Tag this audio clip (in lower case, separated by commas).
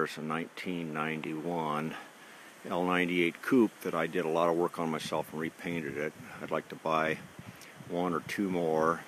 speech